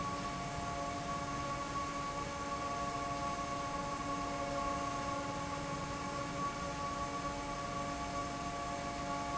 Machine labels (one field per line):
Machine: fan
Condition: normal